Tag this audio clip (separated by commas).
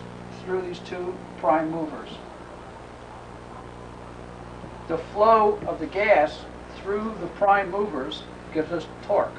Speech